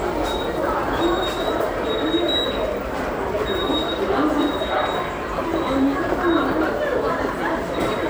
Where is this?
in a subway station